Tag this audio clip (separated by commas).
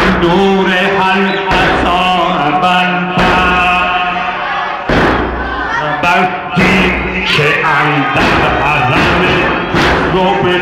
Speech, Music, inside a large room or hall